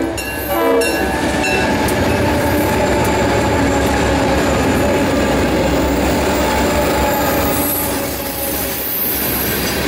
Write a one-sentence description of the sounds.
A railroad car slows down as it prepares to stop for passengers. It makes a loud hissing sound as it brakes